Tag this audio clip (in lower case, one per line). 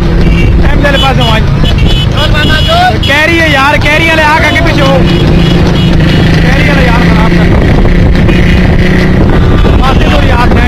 speech
clip-clop